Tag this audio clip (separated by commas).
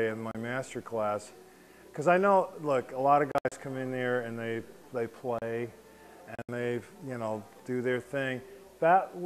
Speech